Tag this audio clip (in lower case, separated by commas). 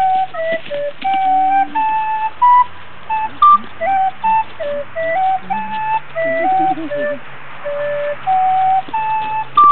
flute, music